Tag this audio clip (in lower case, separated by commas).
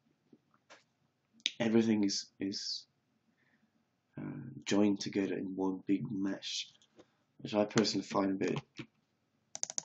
speech